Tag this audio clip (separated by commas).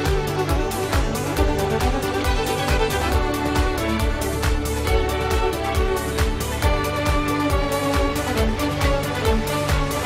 Music